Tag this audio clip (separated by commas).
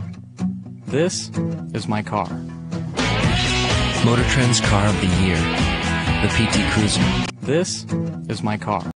Speech, Music